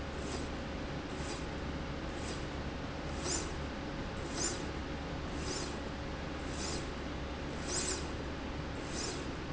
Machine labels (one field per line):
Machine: slide rail